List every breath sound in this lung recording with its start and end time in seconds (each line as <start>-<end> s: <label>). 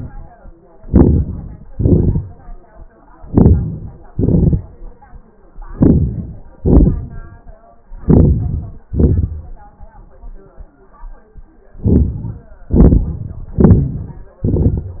0.81-1.63 s: inhalation
1.68-3.06 s: exhalation
3.14-4.16 s: inhalation
4.16-5.51 s: exhalation
5.55-6.55 s: inhalation
5.55-6.55 s: crackles
6.57-7.77 s: exhalation
7.93-8.83 s: inhalation
8.87-10.46 s: exhalation
11.76-12.65 s: inhalation
12.65-13.46 s: exhalation
13.49-14.40 s: inhalation
13.49-14.40 s: crackles
14.43-15.00 s: exhalation